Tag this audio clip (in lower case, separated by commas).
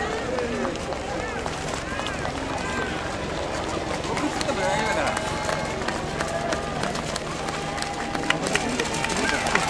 outside, urban or man-made, speech